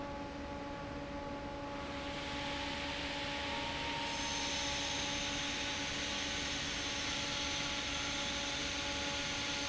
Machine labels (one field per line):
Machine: fan